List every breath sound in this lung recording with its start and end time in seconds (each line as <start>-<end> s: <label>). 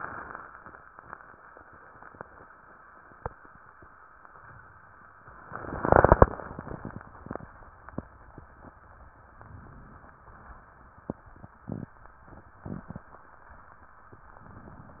9.37-10.32 s: inhalation